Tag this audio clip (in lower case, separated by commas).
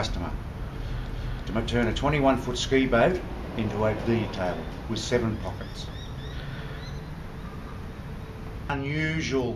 speech